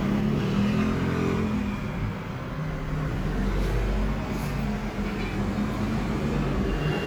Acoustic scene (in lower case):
street